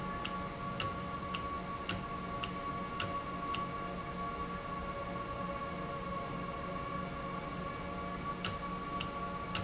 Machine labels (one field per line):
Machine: valve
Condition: normal